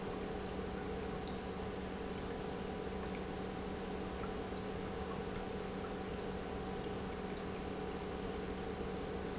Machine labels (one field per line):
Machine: pump